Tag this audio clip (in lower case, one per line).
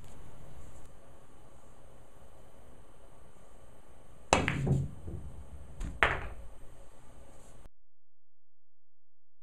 striking pool